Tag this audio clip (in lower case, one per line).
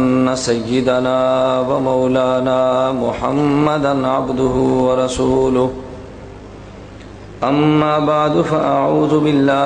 speech
male speech